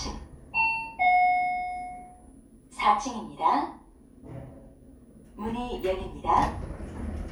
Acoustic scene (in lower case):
elevator